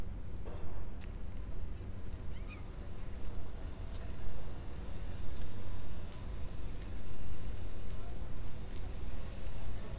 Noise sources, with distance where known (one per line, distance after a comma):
background noise